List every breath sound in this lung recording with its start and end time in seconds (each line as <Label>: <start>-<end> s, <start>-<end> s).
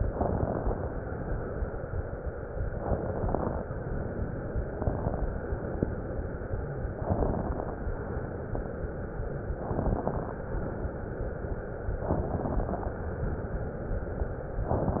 Inhalation: 0.00-1.01 s, 2.69-3.70 s, 4.72-5.37 s, 6.94-7.82 s, 9.60-10.47 s, 12.09-12.96 s